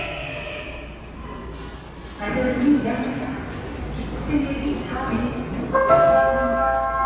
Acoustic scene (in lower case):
subway station